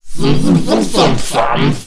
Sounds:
Human voice, Speech

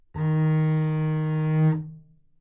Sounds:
Music, Bowed string instrument, Musical instrument

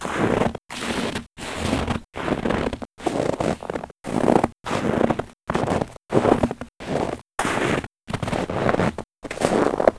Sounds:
Walk

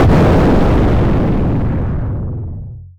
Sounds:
Explosion

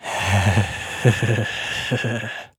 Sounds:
Human voice, Laughter

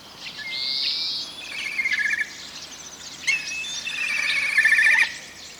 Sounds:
Bird, Animal, Wild animals

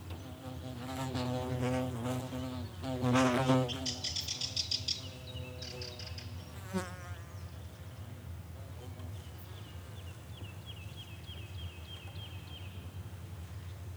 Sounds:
Buzz, Wild animals, Animal, Insect

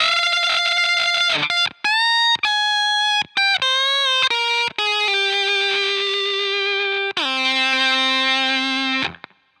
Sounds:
Plucked string instrument, Musical instrument, Music, Guitar

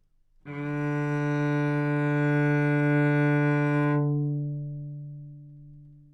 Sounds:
Music, Bowed string instrument, Musical instrument

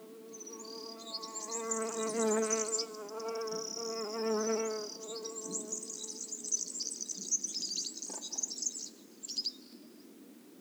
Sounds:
Bird, Animal, Insect, Wild animals

